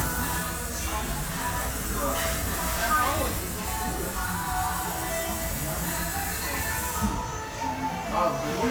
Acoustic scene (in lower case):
cafe